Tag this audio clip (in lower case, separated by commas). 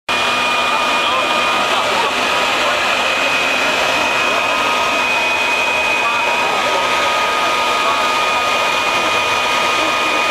vehicle